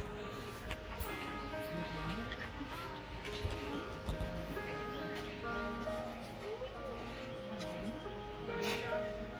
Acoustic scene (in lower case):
park